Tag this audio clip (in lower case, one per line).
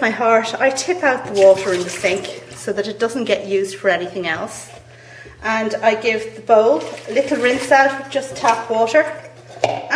drip
speech